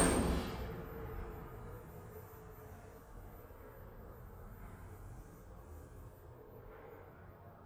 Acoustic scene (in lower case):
elevator